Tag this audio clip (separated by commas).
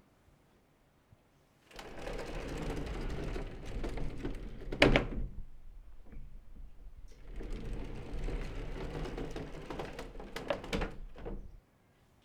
Door, home sounds, Sliding door